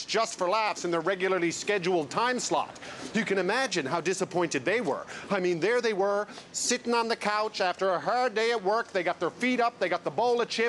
A man speaks outdoors